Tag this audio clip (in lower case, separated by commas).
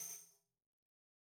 musical instrument, tambourine, music, percussion